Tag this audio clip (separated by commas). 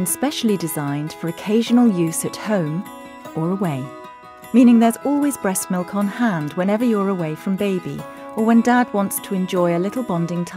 Speech, Music